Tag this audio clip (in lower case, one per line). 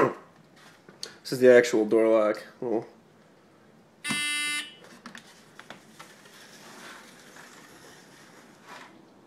speech